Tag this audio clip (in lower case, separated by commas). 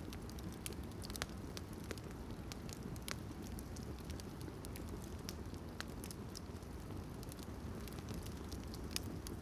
fire crackling